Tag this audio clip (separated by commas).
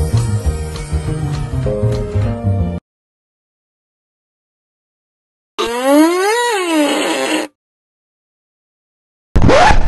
Sound effect, Music